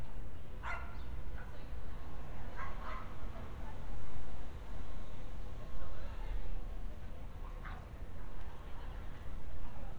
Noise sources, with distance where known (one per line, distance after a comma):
dog barking or whining, far